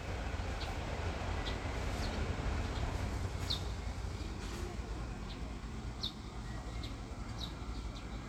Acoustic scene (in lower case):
residential area